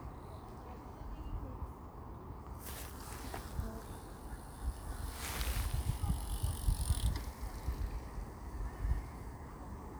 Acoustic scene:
park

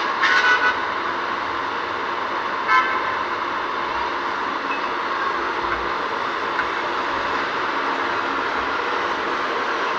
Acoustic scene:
street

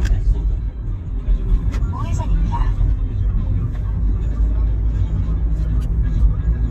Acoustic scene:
car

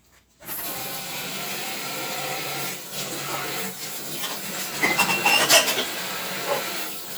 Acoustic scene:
kitchen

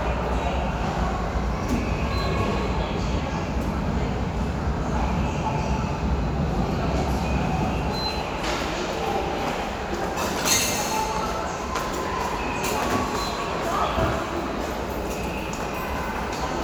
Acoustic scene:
subway station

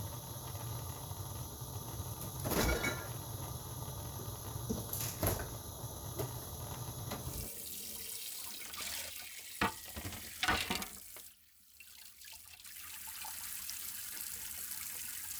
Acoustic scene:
kitchen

